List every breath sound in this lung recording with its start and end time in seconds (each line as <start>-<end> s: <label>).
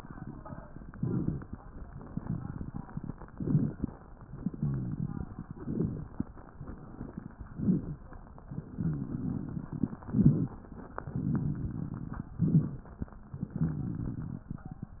0.89-1.54 s: inhalation
0.89-1.54 s: crackles
1.97-3.13 s: exhalation
1.97-3.13 s: crackles
3.28-3.93 s: inhalation
3.28-3.93 s: crackles
4.34-5.50 s: exhalation
4.34-5.50 s: crackles
5.54-6.19 s: inhalation
5.54-6.19 s: crackles
6.53-7.51 s: exhalation
6.53-7.51 s: crackles
7.55-8.16 s: inhalation
7.55-8.16 s: crackles
8.61-10.00 s: exhalation
8.61-10.00 s: crackles
10.04-10.65 s: inhalation
10.04-10.65 s: crackles
10.89-12.28 s: exhalation
10.89-12.28 s: crackles
12.43-13.04 s: inhalation
12.43-13.04 s: crackles
13.38-14.76 s: exhalation
13.38-14.76 s: crackles